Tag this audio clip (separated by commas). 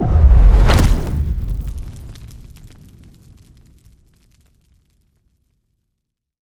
Fire